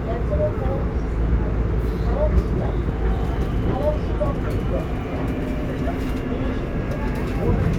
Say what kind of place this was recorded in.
subway train